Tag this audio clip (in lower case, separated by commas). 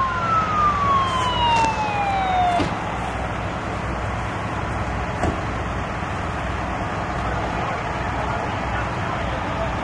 vehicle, air brake, car